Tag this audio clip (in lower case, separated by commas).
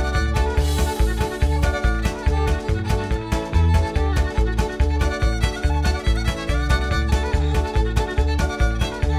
music, violin, musical instrument